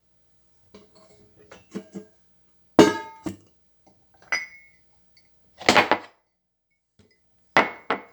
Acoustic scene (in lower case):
kitchen